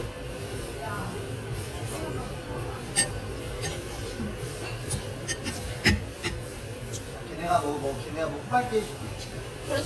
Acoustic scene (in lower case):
restaurant